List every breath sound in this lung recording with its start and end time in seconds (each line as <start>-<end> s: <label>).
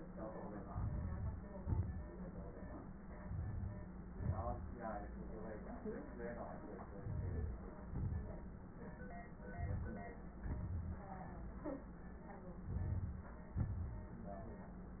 0.66-1.49 s: inhalation
0.66-1.49 s: crackles
1.49-2.12 s: exhalation
1.50-2.08 s: crackles
3.18-4.06 s: inhalation
4.07-4.75 s: exhalation
4.07-4.75 s: crackles
6.87-7.86 s: inhalation
7.88-8.77 s: exhalation
7.88-8.77 s: crackles
9.36-10.35 s: inhalation
10.33-11.23 s: crackles
10.34-11.24 s: exhalation
12.53-13.48 s: inhalation
12.54-13.43 s: crackles
13.47-14.12 s: exhalation
13.47-14.12 s: crackles